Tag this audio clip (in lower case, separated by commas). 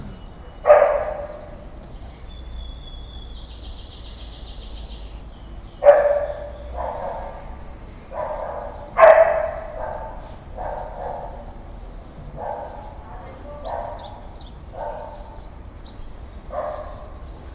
bird vocalization, domestic animals, wild animals, dog, bird, bark, animal